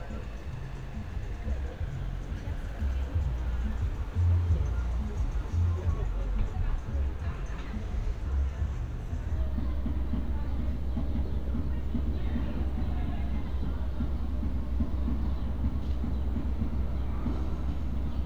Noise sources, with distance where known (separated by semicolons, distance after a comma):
music from a fixed source, far; unidentified human voice